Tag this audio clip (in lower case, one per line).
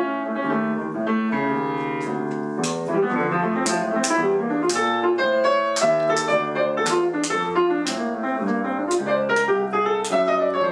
musical instrument
keyboard (musical)
music
piano